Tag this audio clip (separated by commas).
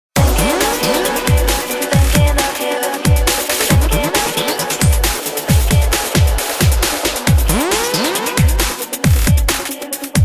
Music, Electronica, Drum and bass